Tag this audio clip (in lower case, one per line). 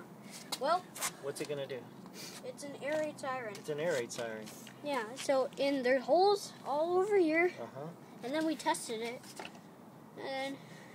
speech